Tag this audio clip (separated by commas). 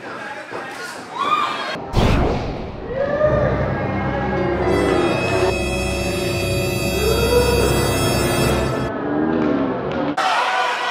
inside a large room or hall, Scary music, Music